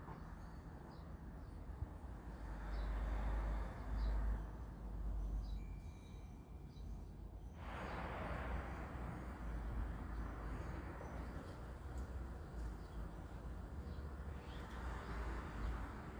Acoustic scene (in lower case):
residential area